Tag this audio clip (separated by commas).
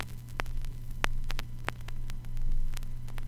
Crackle